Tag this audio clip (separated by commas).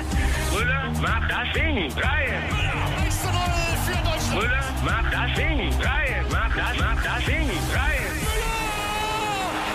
Music